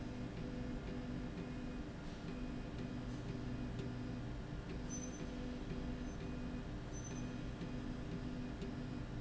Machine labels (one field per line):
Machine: slide rail